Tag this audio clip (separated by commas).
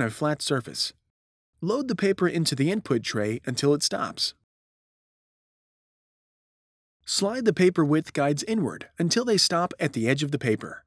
Speech